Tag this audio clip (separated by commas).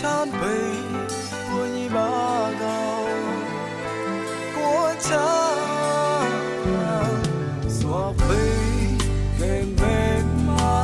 Music